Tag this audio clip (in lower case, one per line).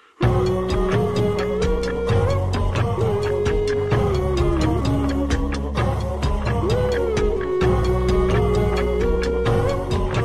music